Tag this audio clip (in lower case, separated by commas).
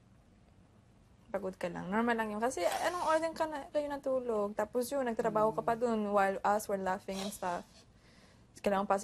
speech